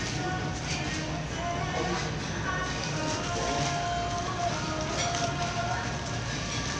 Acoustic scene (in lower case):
crowded indoor space